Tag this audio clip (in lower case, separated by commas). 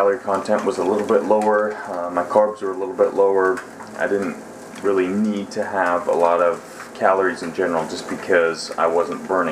inside a small room, speech